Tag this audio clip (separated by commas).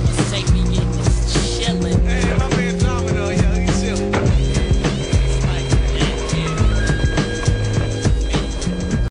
Music, Speech